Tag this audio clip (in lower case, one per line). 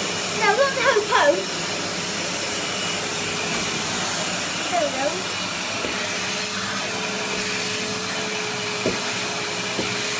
speech
vacuum cleaner